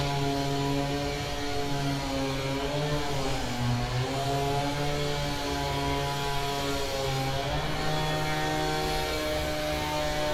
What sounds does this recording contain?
unidentified powered saw